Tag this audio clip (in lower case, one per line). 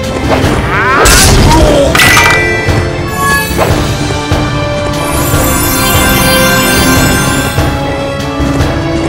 music
theme music